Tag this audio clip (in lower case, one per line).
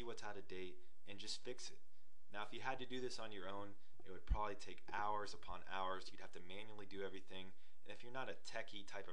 speech